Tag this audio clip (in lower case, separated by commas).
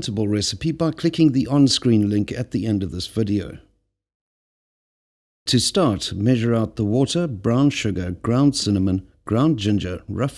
speech